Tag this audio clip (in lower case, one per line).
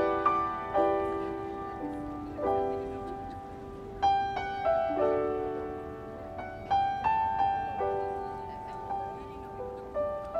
music
speech